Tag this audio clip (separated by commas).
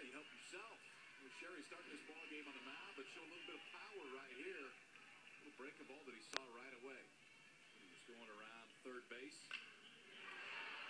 Speech